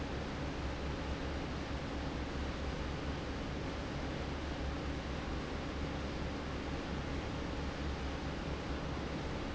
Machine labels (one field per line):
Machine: fan